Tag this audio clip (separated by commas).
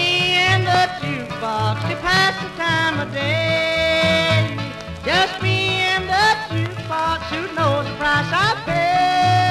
Music